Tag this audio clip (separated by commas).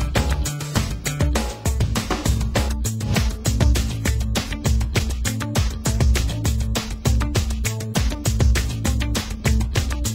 Music